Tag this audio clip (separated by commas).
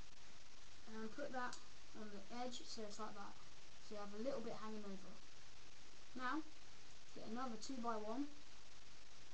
Speech